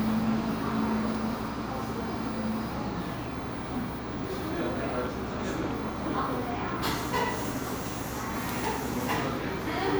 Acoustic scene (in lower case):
cafe